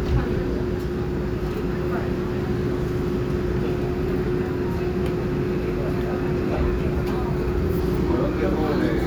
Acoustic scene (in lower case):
subway train